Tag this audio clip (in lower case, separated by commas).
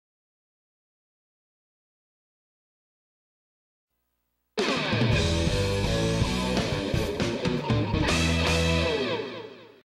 music